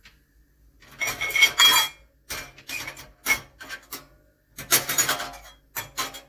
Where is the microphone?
in a kitchen